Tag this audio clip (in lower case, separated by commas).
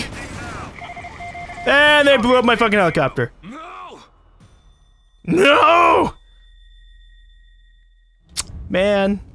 speech, groan